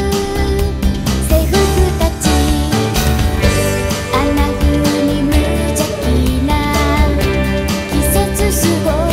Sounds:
Music

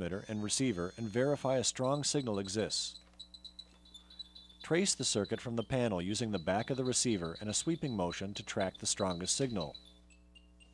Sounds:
Speech

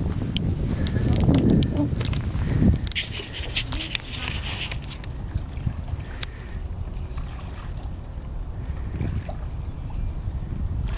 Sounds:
rowboat

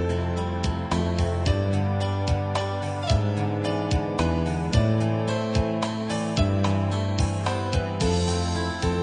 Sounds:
Music

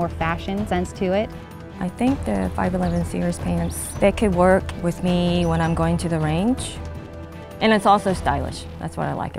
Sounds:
Music, Speech

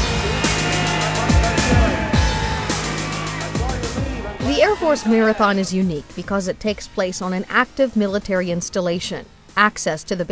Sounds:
outside, urban or man-made, Speech, Music

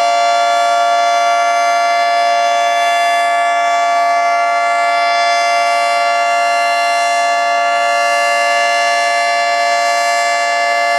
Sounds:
Siren, Civil defense siren

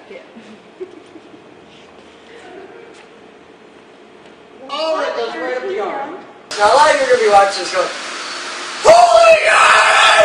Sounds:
inside a large room or hall, Speech

